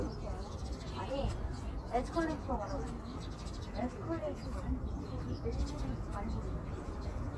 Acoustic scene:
park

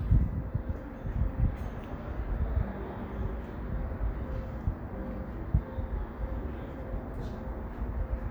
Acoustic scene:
residential area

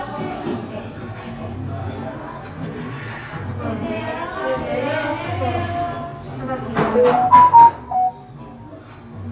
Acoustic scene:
cafe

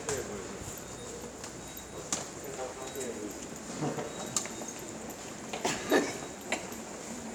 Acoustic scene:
subway station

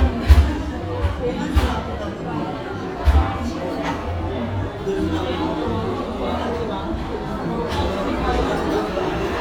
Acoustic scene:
cafe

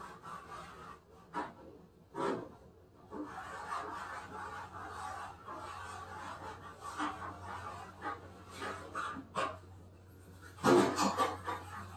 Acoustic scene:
kitchen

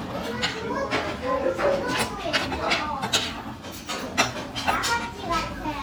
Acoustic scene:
crowded indoor space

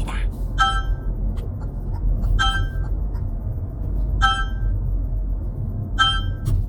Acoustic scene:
car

